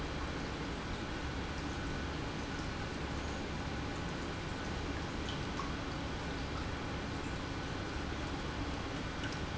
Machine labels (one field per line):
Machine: pump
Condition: normal